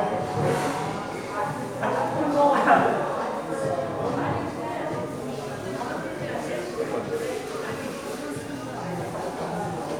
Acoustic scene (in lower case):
crowded indoor space